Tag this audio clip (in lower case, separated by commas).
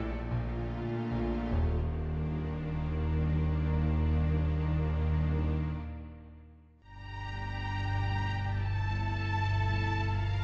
music, theme music, soundtrack music